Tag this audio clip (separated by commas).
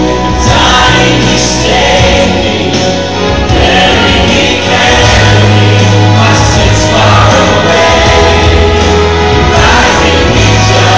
Vocal music, Singing